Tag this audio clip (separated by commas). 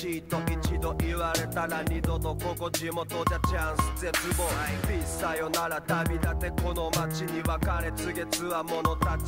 Music